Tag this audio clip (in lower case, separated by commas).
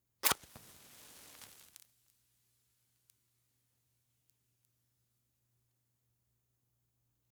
fire